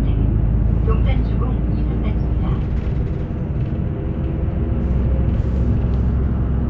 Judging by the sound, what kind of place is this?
bus